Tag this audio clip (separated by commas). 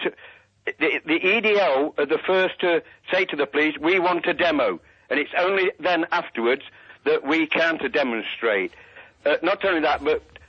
Radio, Speech